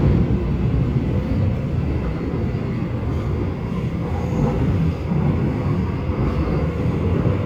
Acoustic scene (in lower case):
subway train